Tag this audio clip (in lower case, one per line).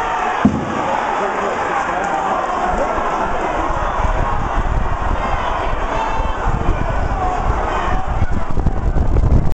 speech